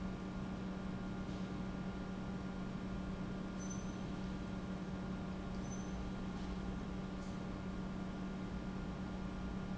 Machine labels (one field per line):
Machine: pump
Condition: normal